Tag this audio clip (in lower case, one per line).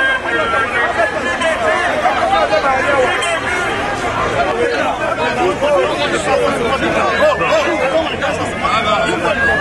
speech